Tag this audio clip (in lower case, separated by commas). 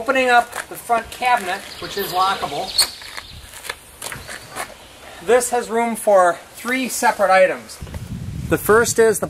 speech, outside, rural or natural, footsteps